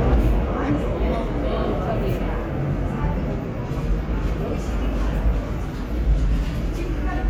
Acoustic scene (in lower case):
subway station